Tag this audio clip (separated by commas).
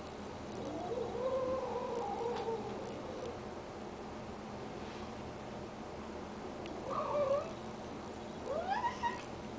Animal, Domestic animals, Whimper (dog)